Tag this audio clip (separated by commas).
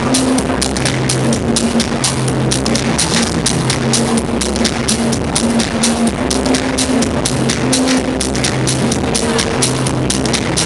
Music, Techno